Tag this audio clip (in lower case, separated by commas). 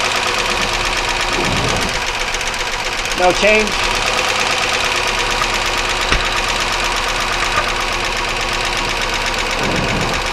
car engine knocking